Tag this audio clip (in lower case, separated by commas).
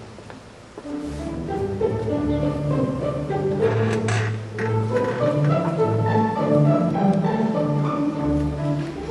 musical instrument, music, fiddle